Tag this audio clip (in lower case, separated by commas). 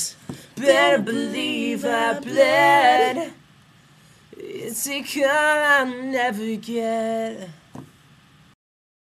male singing